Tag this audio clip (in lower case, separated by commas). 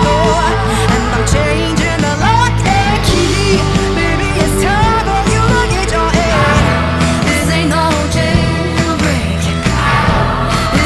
independent music